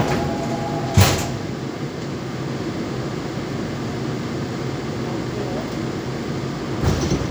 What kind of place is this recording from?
subway train